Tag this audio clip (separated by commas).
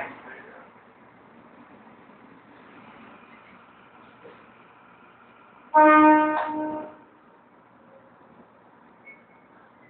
Train, Vehicle, outside, urban or man-made